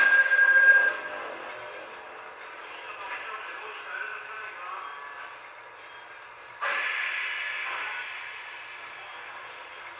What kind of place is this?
subway train